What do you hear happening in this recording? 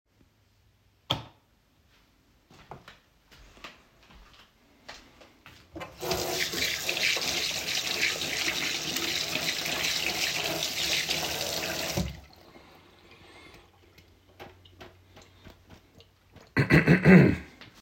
I was standing in the hallway and switched on the light for the bathroom. The door to the bathroom was already open and I went in. When I was in front of the sink, I switched on the water and washed my hands. After switching it off, I had a little clear throught.